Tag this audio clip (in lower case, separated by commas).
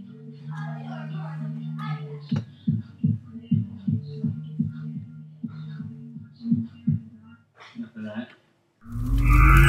music, speech